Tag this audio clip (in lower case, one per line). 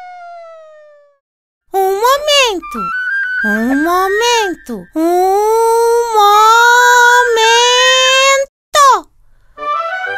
people screaming